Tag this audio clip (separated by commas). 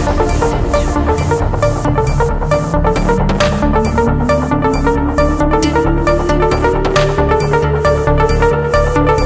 Trance music, Music